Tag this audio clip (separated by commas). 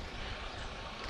Boat, Vehicle